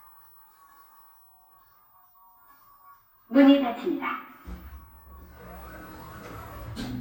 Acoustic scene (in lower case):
elevator